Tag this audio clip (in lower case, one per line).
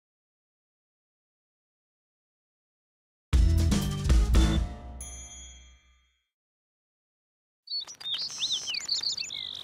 music